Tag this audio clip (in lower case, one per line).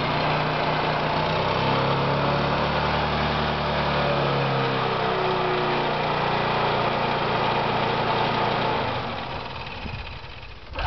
motorcycle
vibration
vehicle
engine